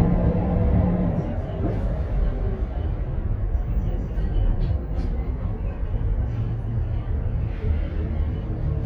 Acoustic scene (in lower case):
bus